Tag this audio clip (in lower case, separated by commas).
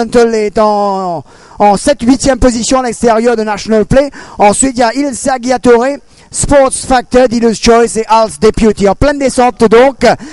speech